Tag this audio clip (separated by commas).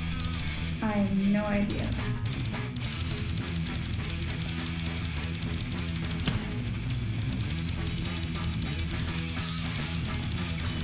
Music, Speech